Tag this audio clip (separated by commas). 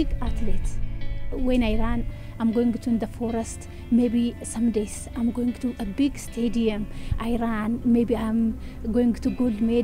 Speech, Music